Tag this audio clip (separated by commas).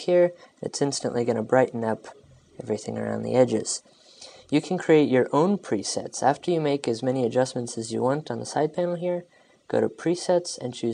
Speech